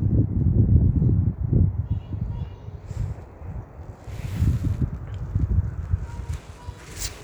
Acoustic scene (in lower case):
park